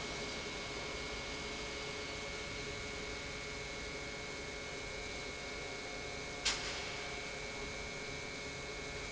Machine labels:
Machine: pump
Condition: normal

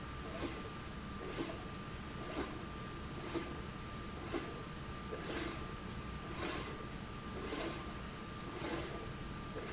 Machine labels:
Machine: slide rail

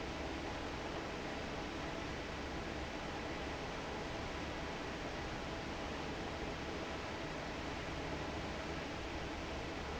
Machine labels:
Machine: fan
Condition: normal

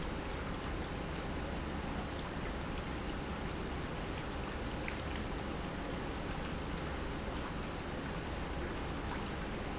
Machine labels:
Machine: pump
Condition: normal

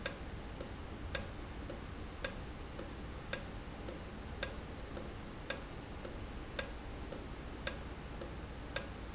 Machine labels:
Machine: valve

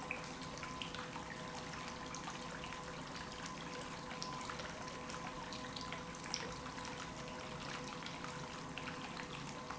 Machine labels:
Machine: pump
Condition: normal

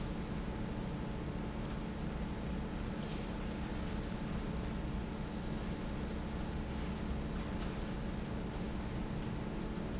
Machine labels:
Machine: fan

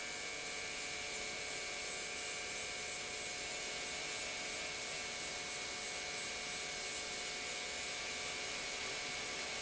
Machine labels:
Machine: pump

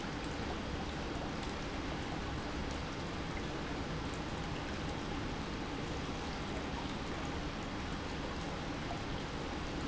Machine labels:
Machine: pump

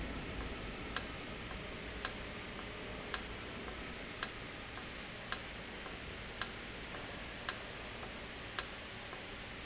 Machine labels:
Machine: valve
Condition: normal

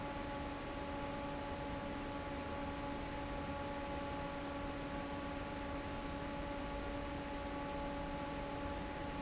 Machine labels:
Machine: fan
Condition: normal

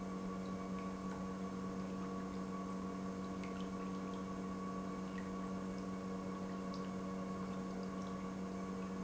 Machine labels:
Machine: pump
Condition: normal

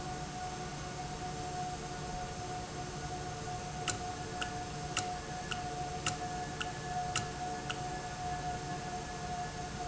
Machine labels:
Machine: valve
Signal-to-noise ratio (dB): -6 dB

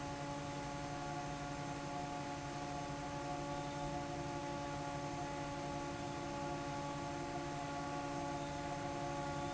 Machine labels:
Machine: fan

